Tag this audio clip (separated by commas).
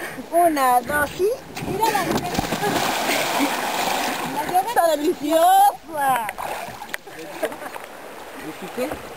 Boat, canoe, Vehicle, Speech, splatter